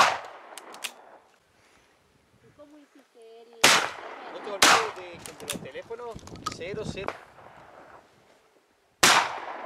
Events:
0.0s-0.3s: gunshot
0.0s-9.6s: wind
0.2s-0.3s: tick
0.5s-0.9s: generic impact sounds
1.3s-1.4s: generic impact sounds
1.5s-1.9s: surface contact
2.3s-7.2s: conversation
2.4s-3.0s: female speech
3.1s-3.6s: female speech
3.6s-3.9s: gunshot
4.2s-5.1s: male speech
4.6s-4.9s: gunshot
4.9s-5.0s: generic impact sounds
5.1s-5.8s: wind noise (microphone)
5.1s-5.6s: generic impact sounds
5.2s-6.2s: male speech
5.9s-6.6s: generic impact sounds
6.1s-7.1s: wind noise (microphone)
6.5s-7.1s: male speech
7.0s-7.3s: gunshot
9.0s-9.3s: gunshot

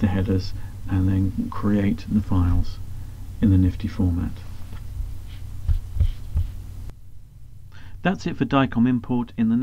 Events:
0.0s-0.5s: male speech
0.0s-9.6s: mechanisms
0.5s-0.7s: breathing
0.8s-2.8s: male speech
2.9s-3.2s: breathing
3.4s-4.3s: male speech
4.3s-4.7s: surface contact
4.7s-4.8s: tap
5.2s-5.5s: surface contact
5.6s-5.8s: tap
5.9s-6.0s: tap
6.0s-6.2s: surface contact
6.3s-6.4s: tap
6.4s-6.5s: surface contact
6.8s-6.9s: tick
7.7s-8.0s: breathing
8.0s-9.6s: male speech

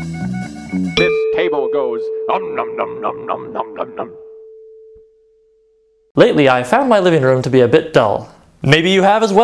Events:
0.0s-0.9s: music
0.9s-1.1s: clang
1.2s-6.1s: echo
1.3s-2.1s: male speech
2.2s-4.0s: human voice
6.1s-8.3s: male speech
8.6s-9.4s: male speech

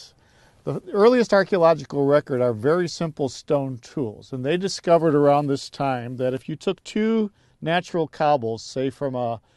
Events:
0.0s-0.6s: breathing
0.6s-7.3s: male speech
7.3s-7.5s: breathing
7.6s-9.4s: male speech

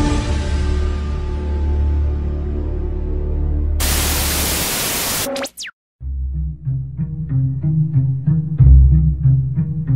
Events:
0.0s-3.8s: music
3.8s-5.3s: static
5.3s-5.7s: sound effect
6.0s-9.9s: music

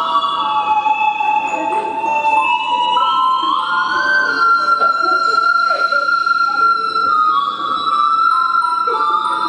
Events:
0.0s-9.4s: music
1.5s-2.2s: human voice
2.6s-3.5s: human voice
3.8s-4.9s: human voice
5.6s-6.0s: cough
6.4s-6.6s: cough
6.4s-7.0s: human voice
8.8s-9.4s: human voice

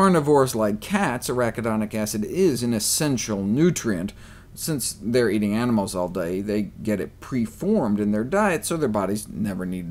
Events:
0.0s-4.1s: male speech
0.0s-9.9s: mechanisms
4.1s-4.5s: breathing
4.5s-9.9s: male speech
6.1s-6.2s: tick

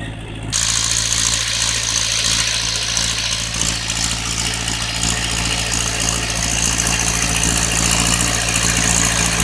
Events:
0.0s-9.4s: heavy engine (low frequency)

